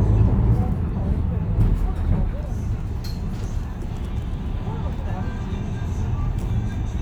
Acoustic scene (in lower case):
bus